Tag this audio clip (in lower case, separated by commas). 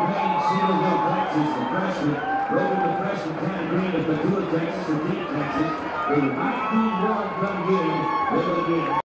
speech